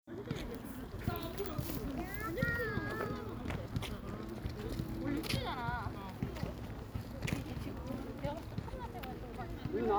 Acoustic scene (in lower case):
park